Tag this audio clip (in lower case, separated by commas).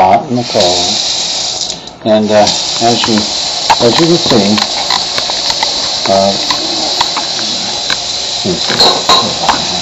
speech, water tap, sink (filling or washing)